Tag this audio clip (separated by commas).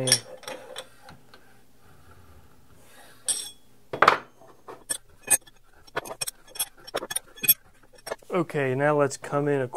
inside a small room, Tools, Speech